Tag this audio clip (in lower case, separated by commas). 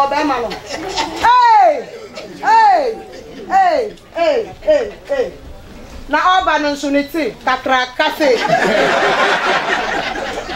speech, laughter